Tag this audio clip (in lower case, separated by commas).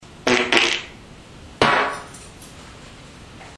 fart